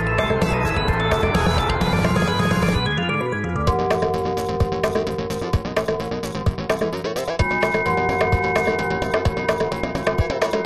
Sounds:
music
video game music

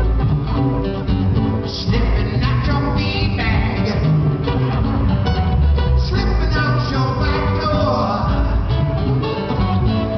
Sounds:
music

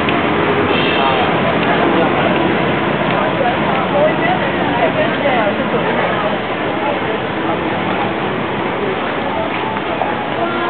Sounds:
speech

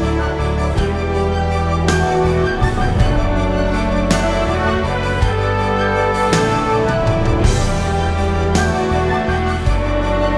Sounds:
music
background music

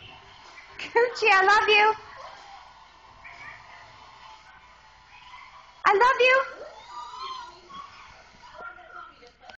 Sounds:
animal
speech

